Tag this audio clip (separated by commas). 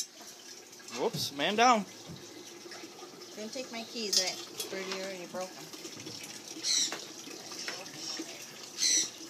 Bird, pets, Speech